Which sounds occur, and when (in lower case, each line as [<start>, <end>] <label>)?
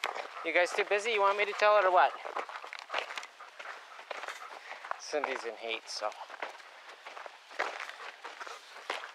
[0.00, 0.31] footsteps
[0.00, 6.54] pant (dog)
[0.00, 9.14] wind
[0.42, 2.12] man speaking
[0.57, 1.84] footsteps
[2.11, 3.24] footsteps
[3.52, 3.82] footsteps
[4.00, 4.36] footsteps
[4.61, 4.96] footsteps
[5.00, 6.27] man speaking
[5.19, 5.45] footsteps
[5.72, 6.08] footsteps
[6.24, 6.59] footsteps
[6.82, 7.37] footsteps
[7.51, 8.09] footsteps
[7.79, 9.14] pant (dog)
[7.95, 8.61] generic impact sounds
[8.19, 9.04] footsteps